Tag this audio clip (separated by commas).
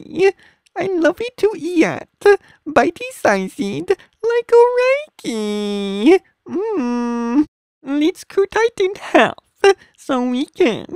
Speech